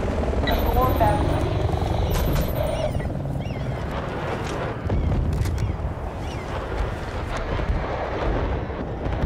Helicopter rotors drumming and squeaking bird